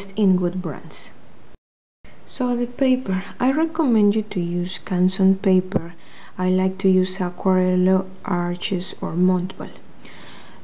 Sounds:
speech

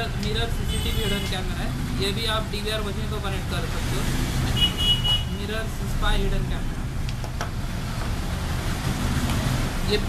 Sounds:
speech

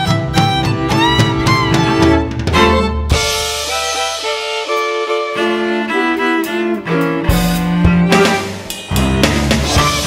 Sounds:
violin
drum
bowed string instrument
musical instrument
drum kit
music

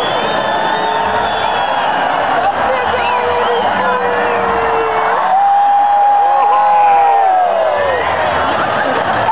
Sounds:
speech

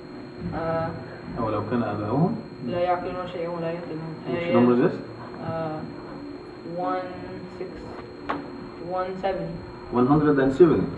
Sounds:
speech

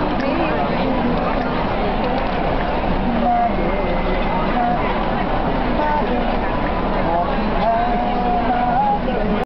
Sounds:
speech
male singing

